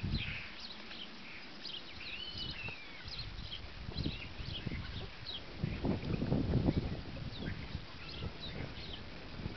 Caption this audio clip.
Birds chirping and water rustling